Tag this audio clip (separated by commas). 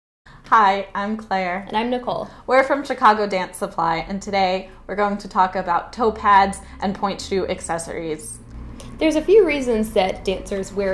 Speech